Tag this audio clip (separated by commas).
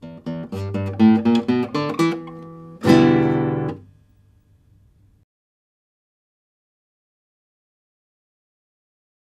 Plucked string instrument, Strum, Music, Musical instrument, Guitar